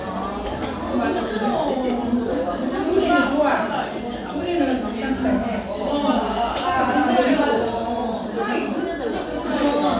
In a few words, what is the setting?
restaurant